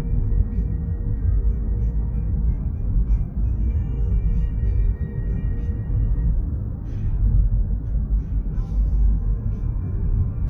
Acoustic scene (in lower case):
car